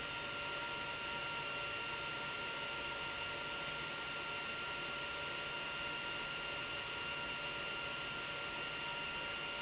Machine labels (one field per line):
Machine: pump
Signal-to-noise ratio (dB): 6 dB